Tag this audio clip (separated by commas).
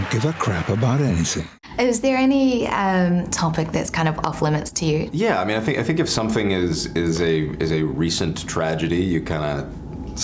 inside a small room, Speech